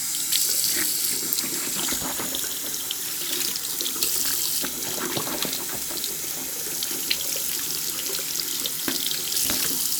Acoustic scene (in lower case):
restroom